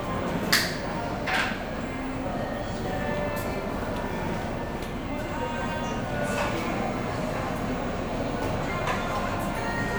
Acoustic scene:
cafe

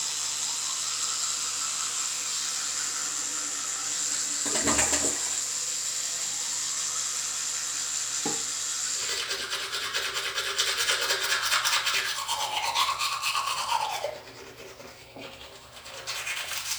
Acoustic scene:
restroom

